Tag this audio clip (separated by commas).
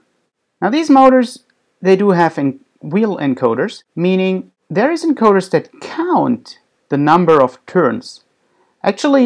Speech